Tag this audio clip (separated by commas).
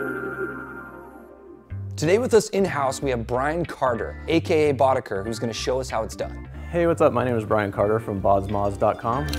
Speech, Music